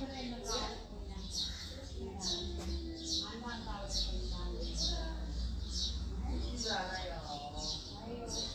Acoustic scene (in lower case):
residential area